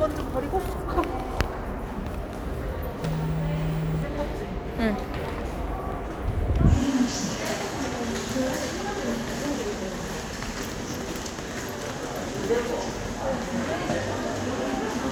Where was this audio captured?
in a subway station